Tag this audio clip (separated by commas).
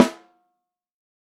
Percussion, Music, Drum, Snare drum, Musical instrument